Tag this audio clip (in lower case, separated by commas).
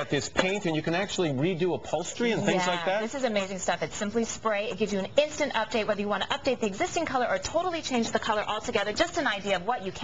speech